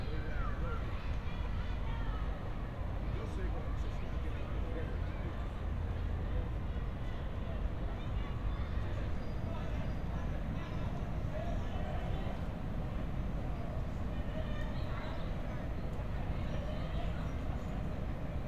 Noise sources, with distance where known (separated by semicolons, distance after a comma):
person or small group talking; person or small group shouting, far